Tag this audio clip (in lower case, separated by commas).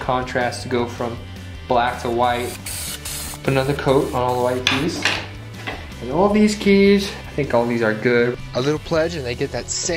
musical instrument, keyboard (musical), music, piano, speech